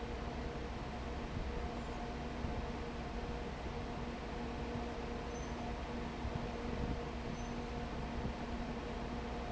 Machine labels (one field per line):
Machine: fan